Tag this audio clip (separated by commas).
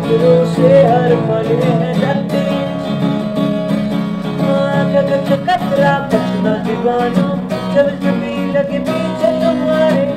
Music